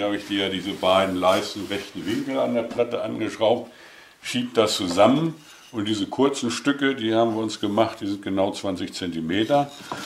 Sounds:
wood
speech

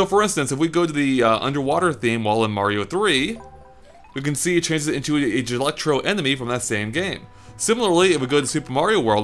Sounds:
music
speech

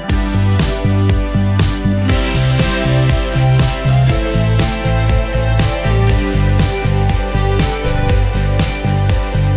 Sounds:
music

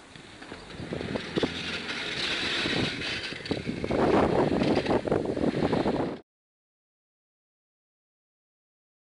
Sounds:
vehicle

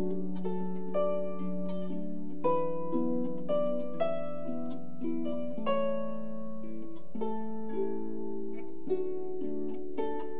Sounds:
harp
music

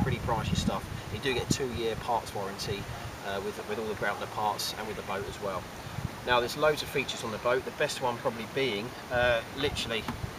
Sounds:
speech

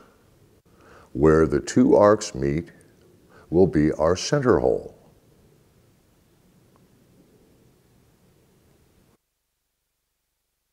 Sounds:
speech

